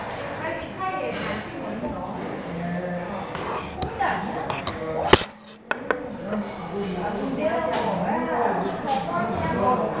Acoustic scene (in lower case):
restaurant